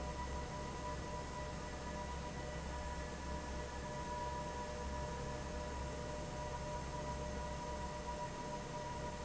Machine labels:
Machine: fan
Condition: normal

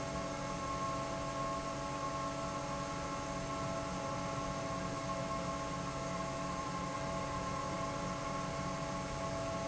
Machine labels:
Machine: fan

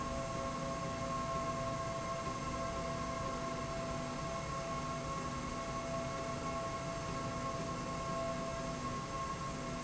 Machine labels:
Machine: slide rail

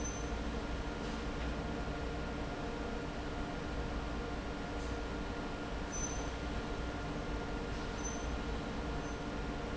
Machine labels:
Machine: fan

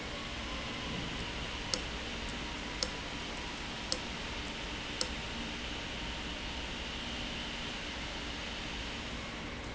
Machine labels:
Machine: valve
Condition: abnormal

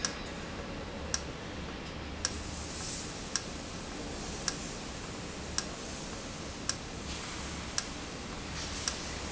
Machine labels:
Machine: valve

